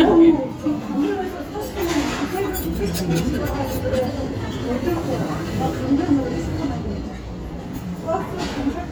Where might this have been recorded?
in a restaurant